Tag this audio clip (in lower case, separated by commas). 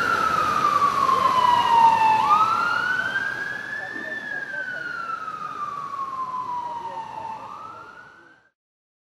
police car (siren), siren, emergency vehicle